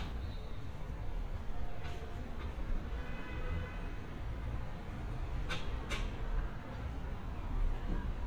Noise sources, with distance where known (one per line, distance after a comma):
non-machinery impact
car horn